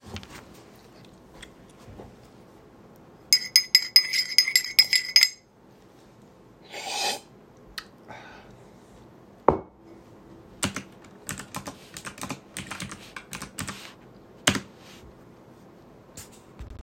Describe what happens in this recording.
I drank stired my tea and drank a sip then I wrote something on my keyboard